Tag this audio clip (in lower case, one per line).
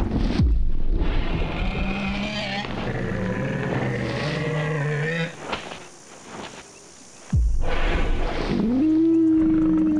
dinosaurs bellowing